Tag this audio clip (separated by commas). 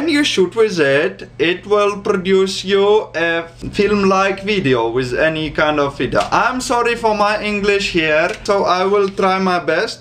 Speech